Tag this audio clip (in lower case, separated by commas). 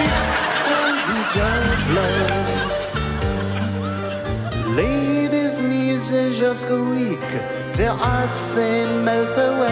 laughter